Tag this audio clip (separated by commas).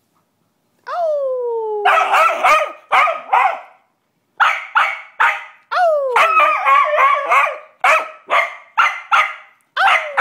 Bow-wow, Yip